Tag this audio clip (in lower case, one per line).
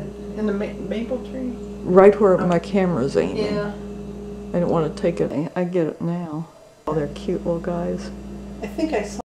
speech